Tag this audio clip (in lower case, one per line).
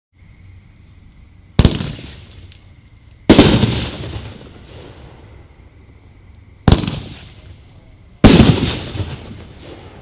fireworks
fireworks banging